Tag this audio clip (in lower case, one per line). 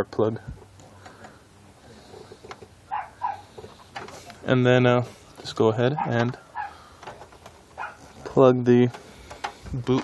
speech
outside, urban or man-made